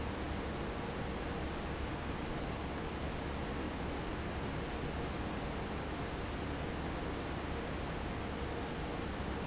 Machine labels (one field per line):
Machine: fan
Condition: normal